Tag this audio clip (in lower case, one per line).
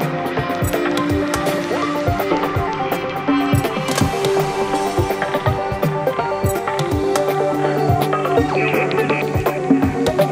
dubstep
music